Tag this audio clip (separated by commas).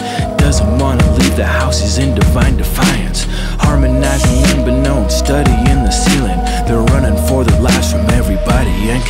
Music